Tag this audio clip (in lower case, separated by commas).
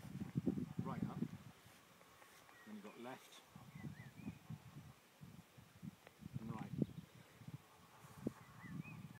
bird, speech, coo